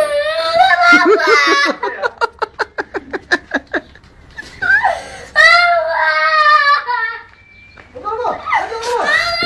A child is crying and people are laughing